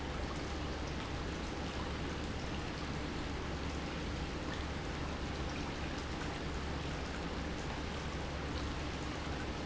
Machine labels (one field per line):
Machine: pump